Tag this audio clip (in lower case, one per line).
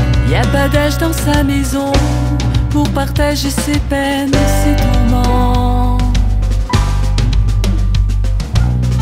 music